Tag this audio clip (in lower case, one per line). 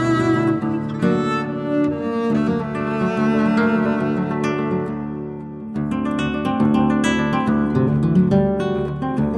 music
acoustic guitar
guitar
musical instrument
cello
plucked string instrument